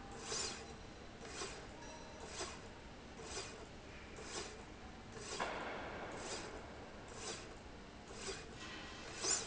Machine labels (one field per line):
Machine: slide rail